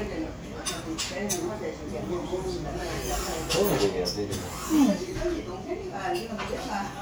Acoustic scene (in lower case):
crowded indoor space